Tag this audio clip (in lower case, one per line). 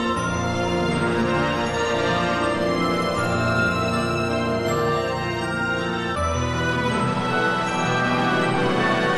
music
musical instrument